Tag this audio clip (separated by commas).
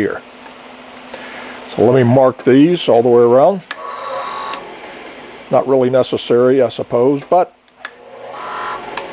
Wood, Tools, Speech